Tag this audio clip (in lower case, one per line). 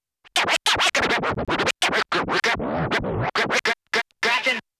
music
scratching (performance technique)
musical instrument